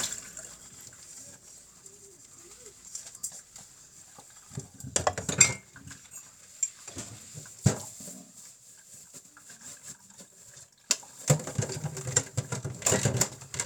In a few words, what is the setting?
kitchen